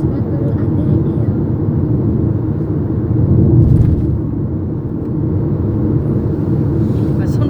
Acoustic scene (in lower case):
car